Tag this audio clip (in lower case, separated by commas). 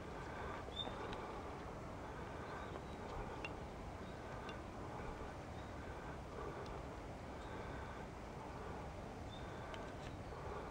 outside, rural or natural, animal